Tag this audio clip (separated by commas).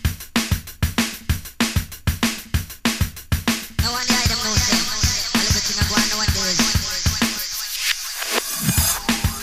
Music